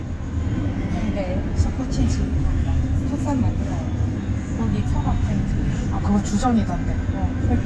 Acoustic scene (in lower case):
bus